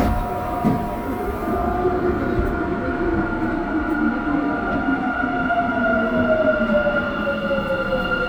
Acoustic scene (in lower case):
subway train